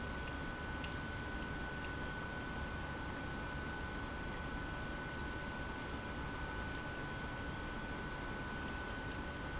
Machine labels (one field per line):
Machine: pump